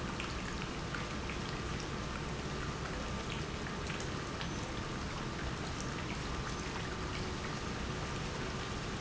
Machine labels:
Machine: pump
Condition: normal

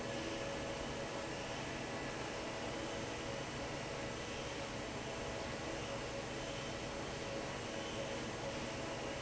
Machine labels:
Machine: fan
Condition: normal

